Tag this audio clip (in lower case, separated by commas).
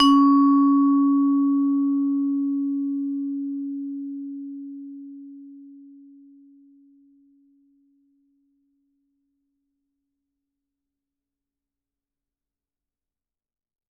mallet percussion, percussion, musical instrument, music